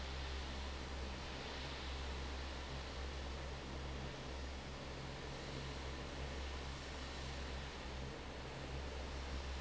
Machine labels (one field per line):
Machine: fan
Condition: normal